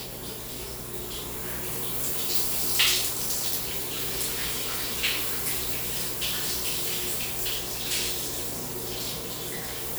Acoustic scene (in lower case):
restroom